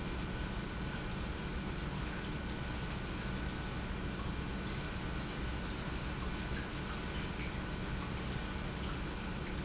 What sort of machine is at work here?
pump